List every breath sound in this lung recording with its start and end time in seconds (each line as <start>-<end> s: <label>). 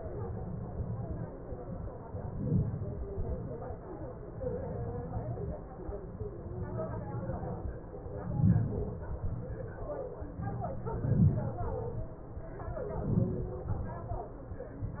2.11-2.89 s: inhalation
2.85-3.46 s: exhalation
8.12-8.77 s: inhalation
8.82-9.47 s: exhalation
10.51-11.50 s: inhalation
11.57-12.35 s: exhalation
12.45-13.45 s: inhalation
13.43-14.31 s: exhalation